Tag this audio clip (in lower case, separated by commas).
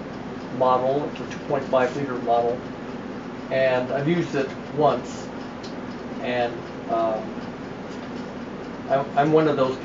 speech